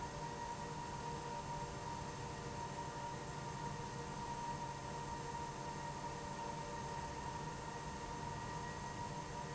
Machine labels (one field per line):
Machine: pump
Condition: abnormal